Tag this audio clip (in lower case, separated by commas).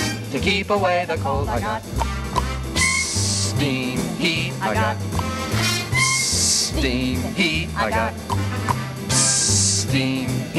music, hiss